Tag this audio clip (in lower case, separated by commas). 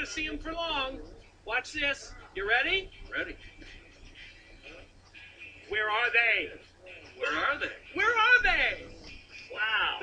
speech, music